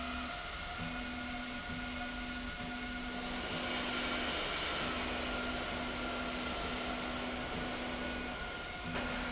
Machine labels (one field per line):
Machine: slide rail